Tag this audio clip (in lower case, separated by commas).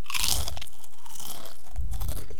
mastication